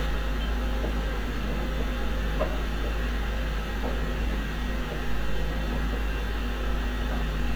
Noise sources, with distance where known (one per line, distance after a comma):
unidentified impact machinery, near